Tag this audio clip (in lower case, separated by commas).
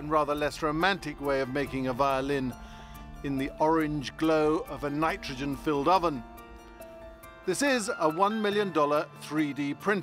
music, musical instrument, speech